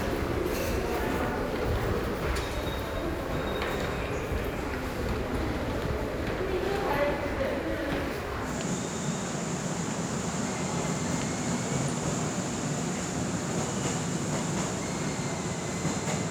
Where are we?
in a subway station